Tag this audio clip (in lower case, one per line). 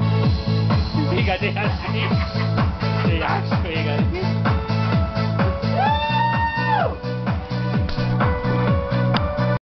music
speech